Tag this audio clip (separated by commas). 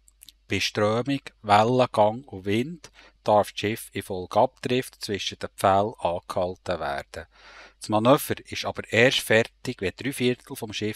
Speech